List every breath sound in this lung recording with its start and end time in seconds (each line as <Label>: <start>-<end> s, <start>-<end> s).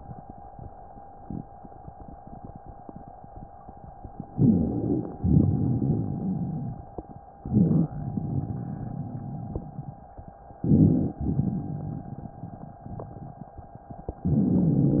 Inhalation: 4.33-5.16 s, 7.42-7.97 s, 10.66-11.21 s, 14.31-15.00 s
Exhalation: 5.22-6.86 s, 8.01-10.03 s, 11.27-12.82 s
Rhonchi: 4.33-5.16 s, 7.42-7.97 s, 10.66-11.21 s, 14.31-15.00 s
Crackles: 5.22-6.86 s, 8.01-10.03 s, 11.27-12.82 s